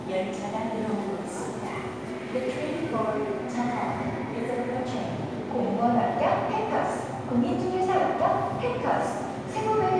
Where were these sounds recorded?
in a subway station